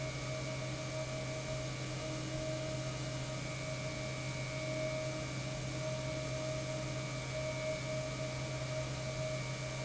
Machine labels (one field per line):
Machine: pump